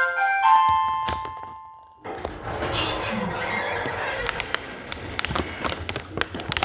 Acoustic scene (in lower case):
elevator